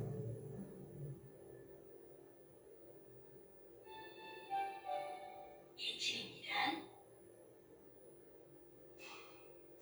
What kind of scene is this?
elevator